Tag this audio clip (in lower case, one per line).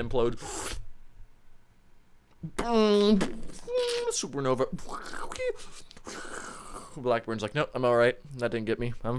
speech